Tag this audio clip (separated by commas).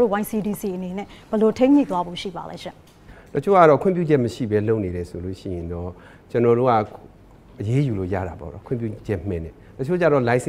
Speech